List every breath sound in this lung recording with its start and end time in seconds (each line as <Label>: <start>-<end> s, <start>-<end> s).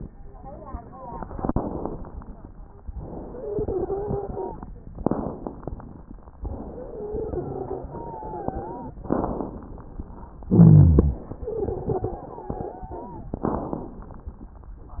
Inhalation: 1.23-1.98 s, 4.99-5.73 s, 9.09-9.83 s, 13.40-14.14 s
Exhalation: 3.04-4.61 s, 6.43-8.99 s, 10.49-11.18 s
Wheeze: 3.30-4.61 s, 6.68-8.99 s, 11.44-13.34 s
Rhonchi: 10.49-11.18 s